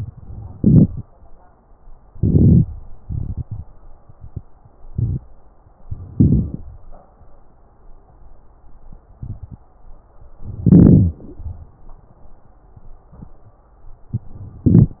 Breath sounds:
0.54-1.03 s: inhalation
2.14-2.62 s: inhalation
3.04-3.62 s: exhalation
5.92-6.71 s: inhalation
10.40-11.21 s: inhalation
14.64-15.00 s: inhalation

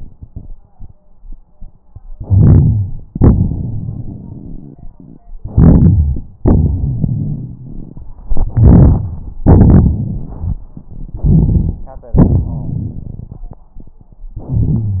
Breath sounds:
2.12-3.05 s: inhalation
3.09-5.22 s: exhalation
3.09-5.22 s: crackles
5.40-6.32 s: inhalation
6.42-8.06 s: exhalation
6.42-8.06 s: crackles
8.27-9.38 s: inhalation
9.45-10.63 s: exhalation
9.45-10.63 s: crackles
11.15-11.84 s: inhalation
12.12-13.48 s: exhalation
14.36-15.00 s: inhalation

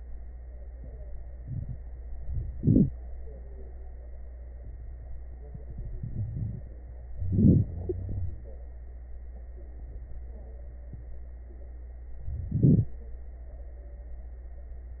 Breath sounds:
2.53-2.93 s: inhalation
7.21-7.62 s: inhalation
7.69-8.37 s: wheeze
12.24-12.93 s: inhalation
12.24-12.93 s: crackles

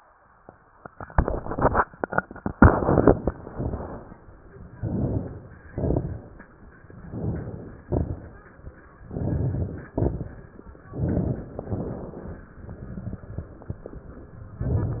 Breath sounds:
2.42-3.29 s: inhalation
2.42-3.29 s: crackles
3.32-4.20 s: exhalation
3.32-4.20 s: crackles
4.73-5.66 s: inhalation
4.73-5.66 s: crackles
5.67-6.61 s: exhalation
5.67-6.61 s: crackles
6.93-7.86 s: inhalation
7.91-8.84 s: exhalation
7.91-8.84 s: crackles
8.97-9.90 s: inhalation
9.92-10.85 s: exhalation
9.92-10.85 s: crackles
10.86-11.60 s: inhalation
11.67-12.54 s: exhalation
14.54-15.00 s: inhalation

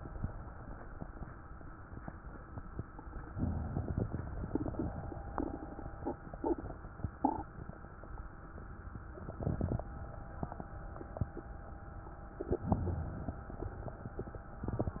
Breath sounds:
12.25-13.49 s: inhalation

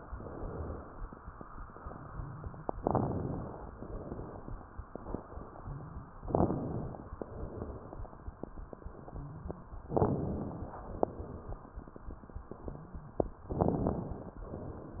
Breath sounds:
0.04-0.95 s: exhalation
2.77-3.68 s: crackles
2.79-3.70 s: inhalation
3.79-4.71 s: exhalation
6.24-7.16 s: crackles
6.28-7.19 s: inhalation
7.19-8.10 s: exhalation
9.90-10.82 s: inhalation
9.90-10.82 s: crackles
10.89-11.80 s: exhalation
13.51-14.42 s: crackles
13.55-14.46 s: inhalation

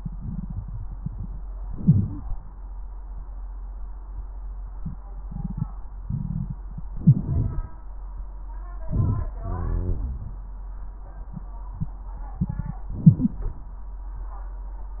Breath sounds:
1.57-2.38 s: inhalation
1.57-2.38 s: crackles
6.93-7.74 s: inhalation
6.93-7.74 s: crackles
8.79-9.34 s: crackles
8.81-9.38 s: inhalation
9.39-10.53 s: exhalation
9.39-10.53 s: crackles
12.91-13.46 s: inhalation
12.91-13.46 s: crackles

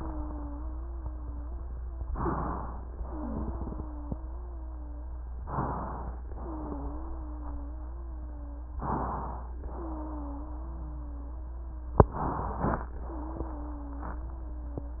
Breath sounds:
0.00-2.05 s: wheeze
2.04-2.92 s: inhalation
2.92-5.33 s: wheeze
5.38-6.27 s: inhalation
6.31-8.72 s: wheeze
8.79-9.68 s: inhalation
9.68-12.09 s: wheeze
12.07-12.96 s: inhalation
13.02-15.00 s: wheeze

